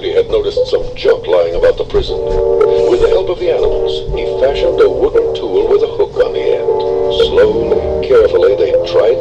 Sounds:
speech
music

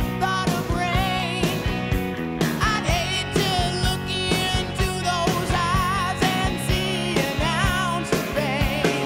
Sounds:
child singing

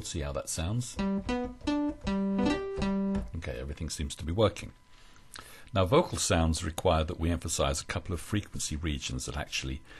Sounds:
speech
music

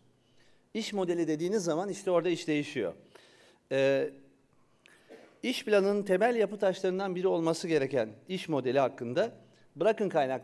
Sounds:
speech

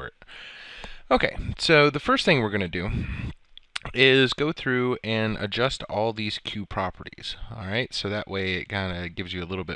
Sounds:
speech

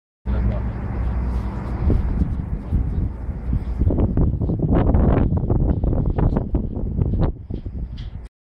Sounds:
speech

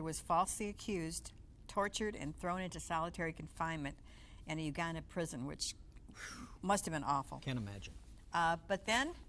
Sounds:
speech

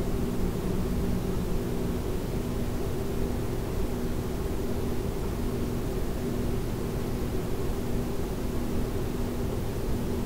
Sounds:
silence

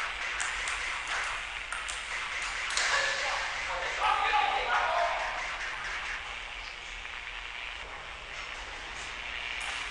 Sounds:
speech

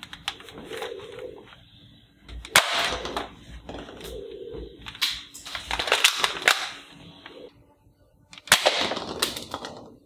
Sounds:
machine gun shooting

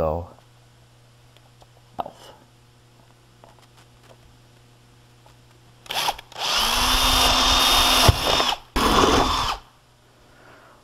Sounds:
speech
power tool

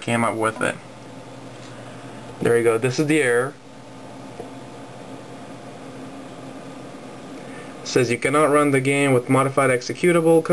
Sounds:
speech

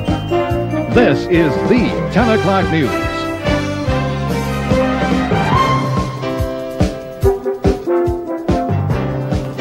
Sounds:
music
speech

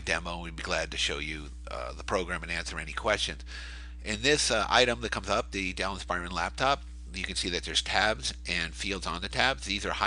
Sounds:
speech

